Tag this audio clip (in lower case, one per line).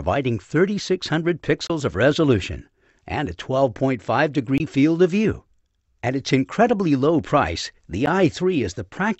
speech